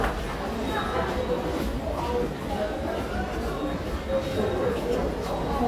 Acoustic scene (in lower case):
subway station